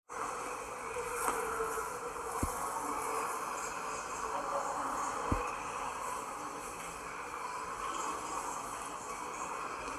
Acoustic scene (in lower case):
subway station